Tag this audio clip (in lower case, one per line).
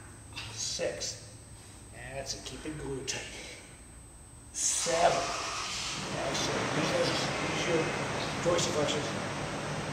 speech